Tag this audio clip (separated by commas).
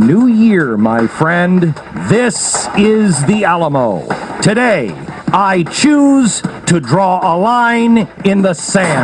Narration, Speech, Radio, Music